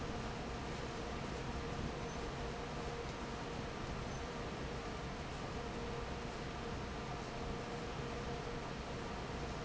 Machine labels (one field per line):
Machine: fan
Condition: normal